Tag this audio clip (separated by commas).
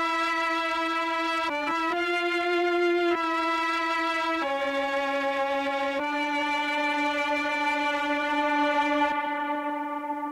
Music